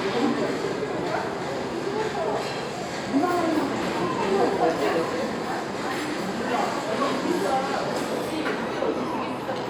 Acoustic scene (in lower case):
crowded indoor space